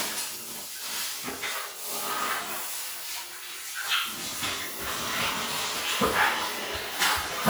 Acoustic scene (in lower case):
restroom